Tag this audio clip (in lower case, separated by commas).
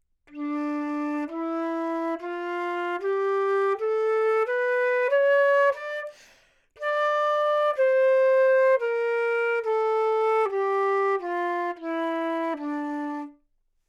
woodwind instrument, music, musical instrument